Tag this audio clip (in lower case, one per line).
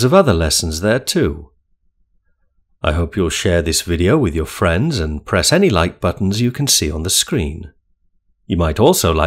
speech